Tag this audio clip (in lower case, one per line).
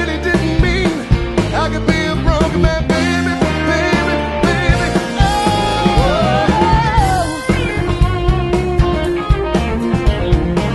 music
funk